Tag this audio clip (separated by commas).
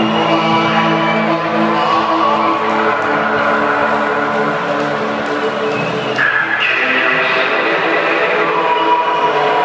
Cheering, Music, Sound effect